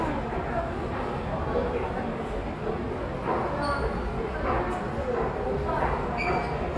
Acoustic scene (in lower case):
subway station